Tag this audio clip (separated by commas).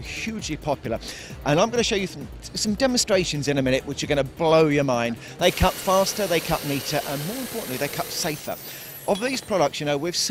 Music, Speech, Tools